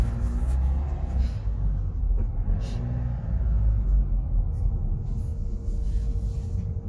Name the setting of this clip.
car